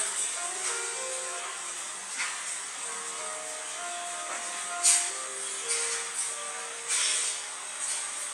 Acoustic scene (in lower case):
cafe